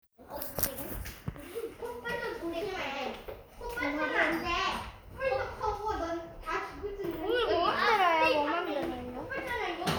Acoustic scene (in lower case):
crowded indoor space